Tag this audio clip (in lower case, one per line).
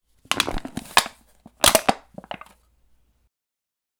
crushing